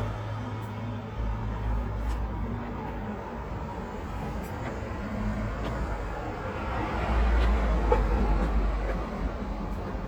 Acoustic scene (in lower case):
street